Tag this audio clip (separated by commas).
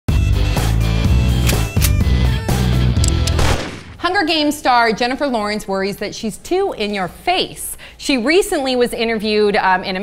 Music, Speech